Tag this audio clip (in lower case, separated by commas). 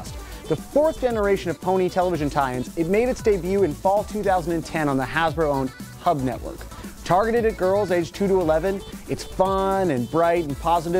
speech, music